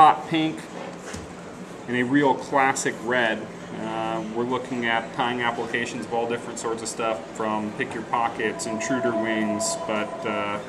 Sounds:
Speech

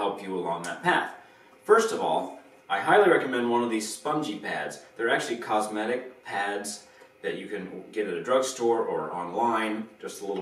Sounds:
Speech

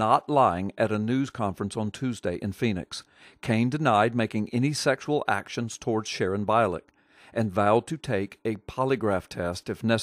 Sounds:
Speech

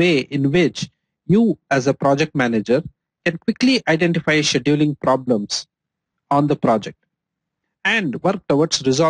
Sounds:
Speech

